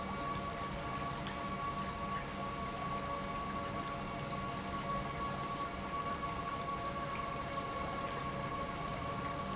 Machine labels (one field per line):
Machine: pump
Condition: normal